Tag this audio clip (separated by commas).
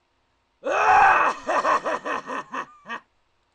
Laughter, Human voice